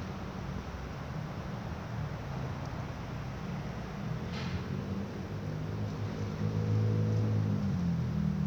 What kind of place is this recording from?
residential area